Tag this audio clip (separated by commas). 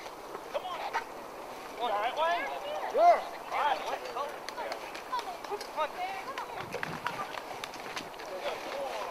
Speech